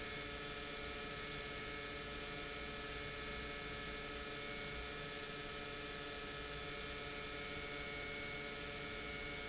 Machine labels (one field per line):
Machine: pump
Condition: normal